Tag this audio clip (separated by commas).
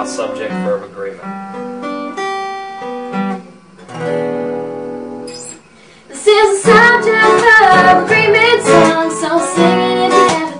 Singing, Strum, Speech, Music